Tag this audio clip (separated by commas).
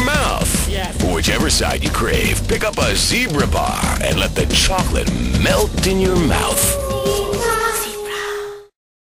Music, Speech